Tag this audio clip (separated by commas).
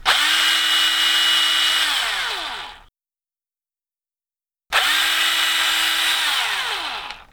Tools, Drill, Power tool